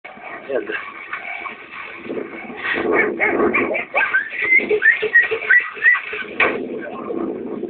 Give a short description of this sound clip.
Male voice, animal whimpering and barking